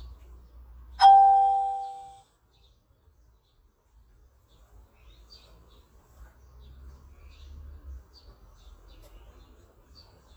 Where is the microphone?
in a park